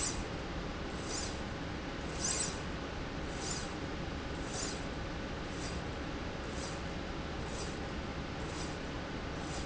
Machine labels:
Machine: slide rail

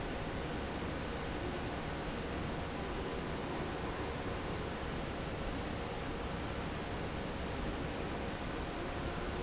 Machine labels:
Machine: fan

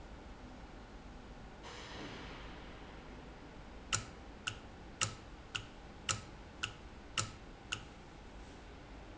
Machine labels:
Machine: valve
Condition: normal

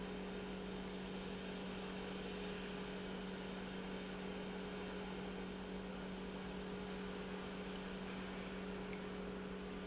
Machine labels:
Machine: pump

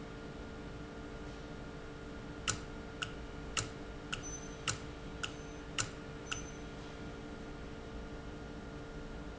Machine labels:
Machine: valve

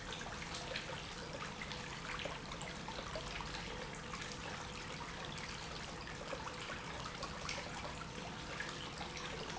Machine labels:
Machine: pump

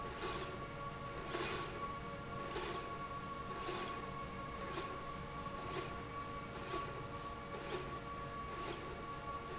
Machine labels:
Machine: slide rail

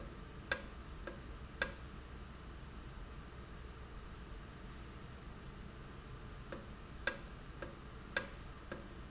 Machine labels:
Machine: valve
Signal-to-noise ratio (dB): 6 dB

